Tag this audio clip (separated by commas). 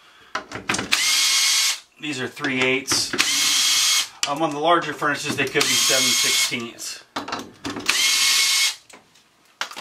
Speech